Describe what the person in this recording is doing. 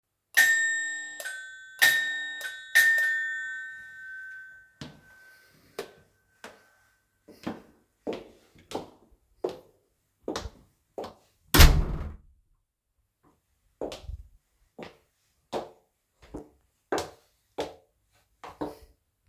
I rang the doorbell several times. Then I entered the hallway and closed the door behind me. I took a few more steps.